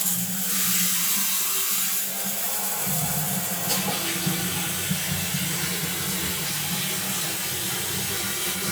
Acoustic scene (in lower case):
restroom